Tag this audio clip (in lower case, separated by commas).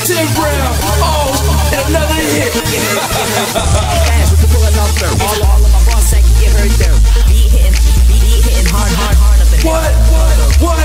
pop music, music